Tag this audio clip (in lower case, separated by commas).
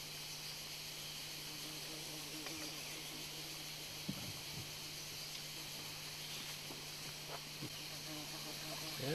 speech